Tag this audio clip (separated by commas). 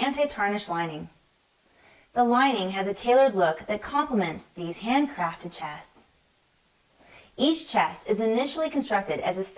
Speech